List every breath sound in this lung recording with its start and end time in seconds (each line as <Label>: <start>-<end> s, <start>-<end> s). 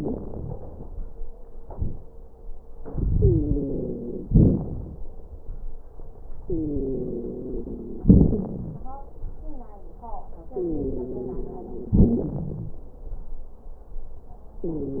Inhalation: 2.90-4.29 s, 6.42-8.03 s, 10.56-11.95 s, 14.65-15.00 s
Exhalation: 4.30-5.02 s, 8.05-8.86 s, 11.98-12.81 s
Wheeze: 3.12-4.29 s, 6.42-8.03 s, 8.05-8.86 s, 10.56-11.95 s, 11.98-12.81 s, 14.65-15.00 s
Crackles: 4.30-5.02 s